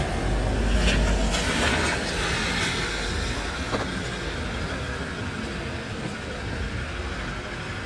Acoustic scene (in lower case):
residential area